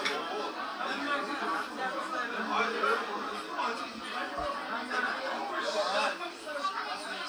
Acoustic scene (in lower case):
restaurant